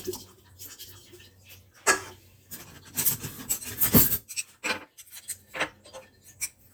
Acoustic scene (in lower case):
kitchen